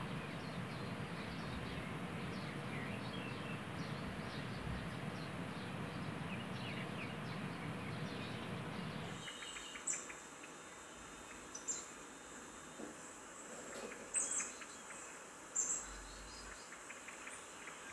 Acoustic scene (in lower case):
park